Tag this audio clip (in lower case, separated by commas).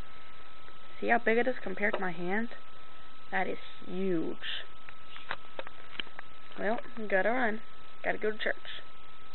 speech